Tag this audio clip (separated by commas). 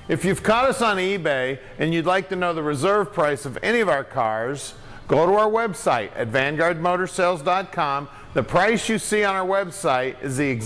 Speech